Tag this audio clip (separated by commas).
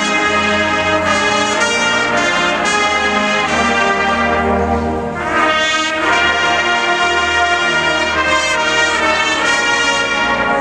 Music